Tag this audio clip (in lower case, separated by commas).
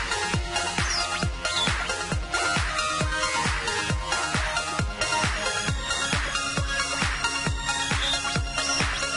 music